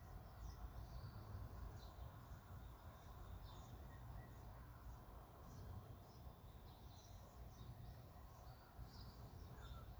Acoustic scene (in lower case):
park